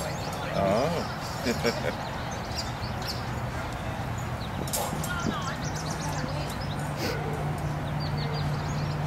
Birds are chirping, traffic noises are present, an adult male speaks and laughs, and people talk and a dog barks in the background